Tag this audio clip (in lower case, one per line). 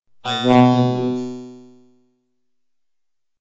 speech
speech synthesizer
human voice